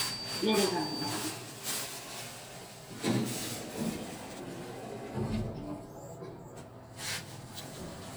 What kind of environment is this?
elevator